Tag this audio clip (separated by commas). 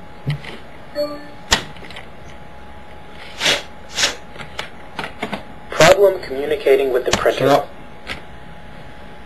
Printer, Speech